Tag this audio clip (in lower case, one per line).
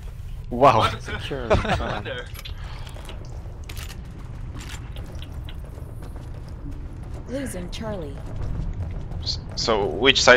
speech